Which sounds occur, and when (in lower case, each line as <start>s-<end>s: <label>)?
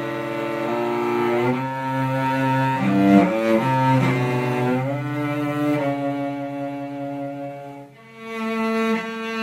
0.0s-9.4s: music